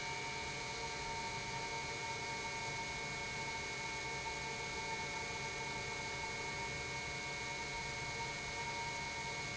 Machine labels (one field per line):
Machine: pump